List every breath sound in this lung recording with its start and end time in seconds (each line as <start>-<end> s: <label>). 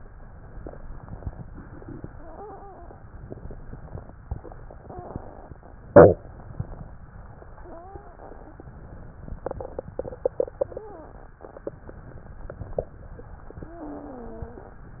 2.08-3.04 s: exhalation
2.08-3.04 s: wheeze
4.62-5.58 s: exhalation
4.62-5.58 s: wheeze
7.57-8.63 s: exhalation
7.57-8.63 s: wheeze
8.65-9.71 s: inhalation
10.59-11.37 s: exhalation
10.59-11.37 s: wheeze
11.69-12.88 s: inhalation
13.62-14.68 s: exhalation
13.62-14.68 s: wheeze